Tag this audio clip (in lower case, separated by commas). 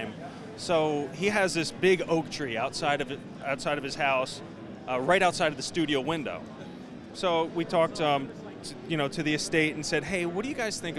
speech